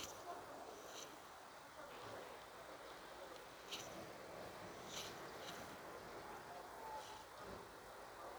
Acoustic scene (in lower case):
residential area